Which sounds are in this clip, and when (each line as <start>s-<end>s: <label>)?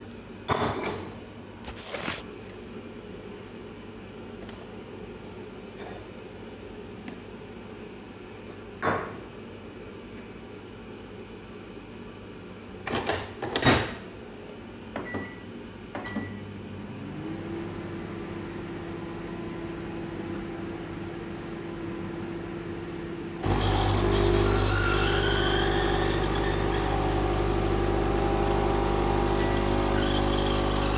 0.4s-1.4s: cutlery and dishes
5.7s-6.2s: cutlery and dishes
8.5s-9.3s: cutlery and dishes
12.8s-14.1s: microwave
15.1s-29.5s: microwave
23.4s-31.0s: coffee machine